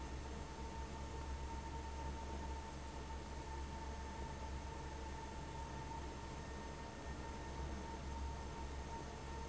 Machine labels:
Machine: fan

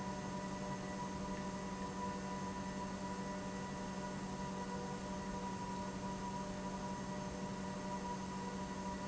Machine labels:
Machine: pump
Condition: normal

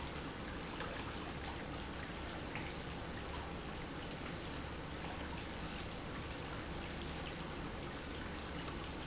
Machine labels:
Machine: pump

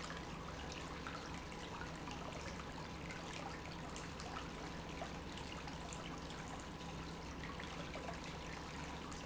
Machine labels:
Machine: pump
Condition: normal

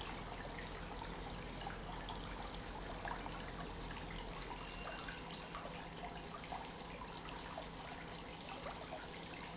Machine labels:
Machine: pump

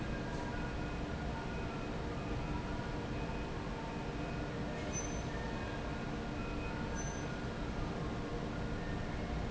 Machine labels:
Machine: fan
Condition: normal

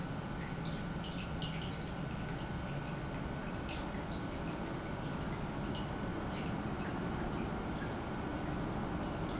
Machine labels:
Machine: pump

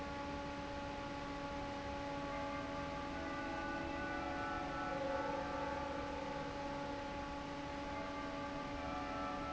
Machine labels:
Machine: fan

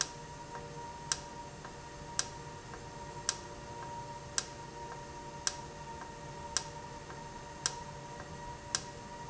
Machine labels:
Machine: valve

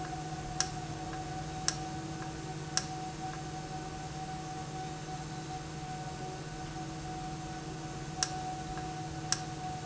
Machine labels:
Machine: valve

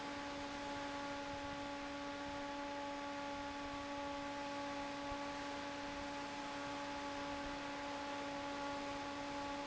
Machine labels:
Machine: fan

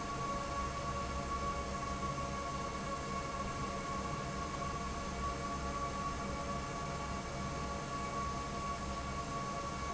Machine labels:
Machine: fan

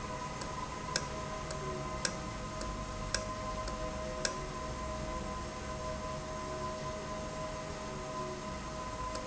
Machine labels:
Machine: valve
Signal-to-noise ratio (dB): -6 dB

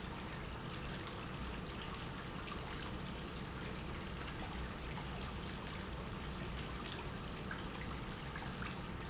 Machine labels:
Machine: pump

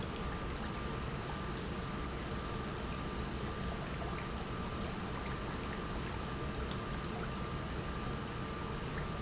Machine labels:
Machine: pump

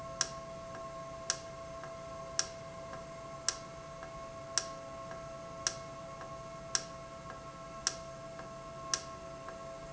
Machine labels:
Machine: valve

